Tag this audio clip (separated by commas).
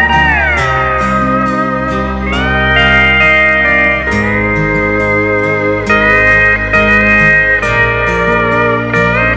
slide guitar, Music